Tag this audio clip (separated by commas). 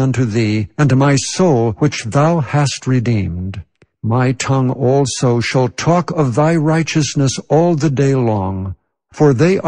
Speech